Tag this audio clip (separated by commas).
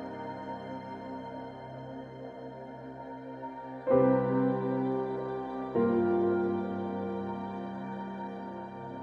Music